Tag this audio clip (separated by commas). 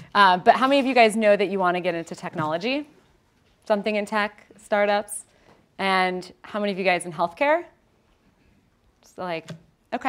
Speech